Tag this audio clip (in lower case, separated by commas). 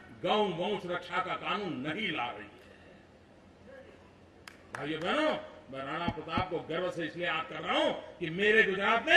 speech, man speaking, monologue